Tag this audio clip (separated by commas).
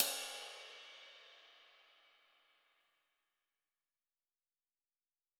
Music, Musical instrument, Crash cymbal, Percussion, Cymbal